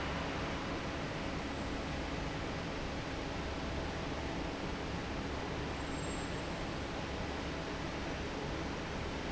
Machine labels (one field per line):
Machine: fan